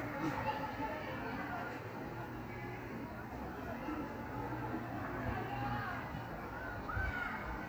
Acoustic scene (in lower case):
park